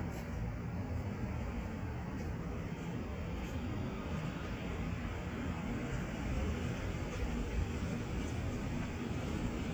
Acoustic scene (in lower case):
street